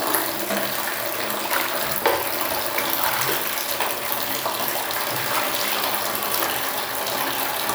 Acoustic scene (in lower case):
restroom